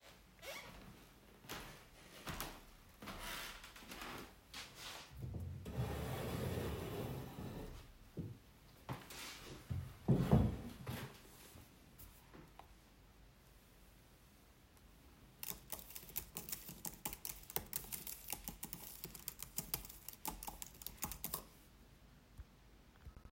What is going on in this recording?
I walked to my desk and then I pulled the chair back and sat down, opened my laptop and started to type.